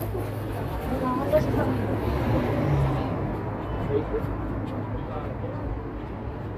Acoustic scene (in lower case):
street